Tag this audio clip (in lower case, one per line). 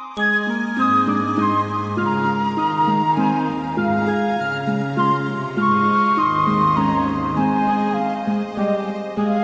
sad music
music